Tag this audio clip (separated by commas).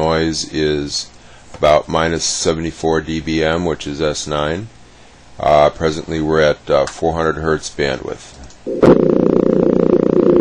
Speech